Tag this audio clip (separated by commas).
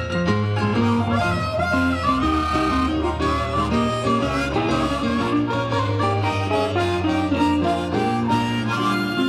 Music, Blues